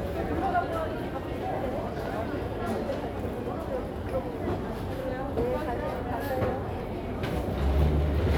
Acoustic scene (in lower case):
crowded indoor space